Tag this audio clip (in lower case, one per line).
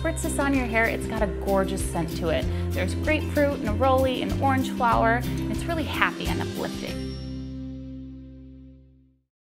speech
music